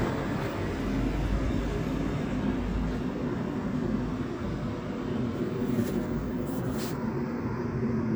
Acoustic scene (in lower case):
residential area